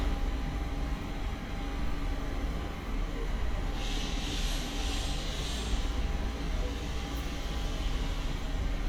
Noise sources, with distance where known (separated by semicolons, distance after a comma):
large-sounding engine, near